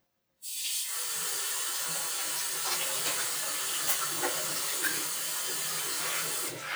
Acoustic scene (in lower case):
restroom